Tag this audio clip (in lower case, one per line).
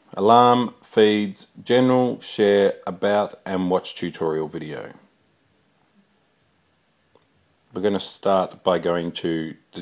speech